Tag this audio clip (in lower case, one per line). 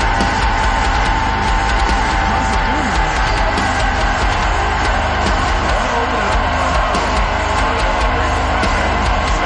music
speech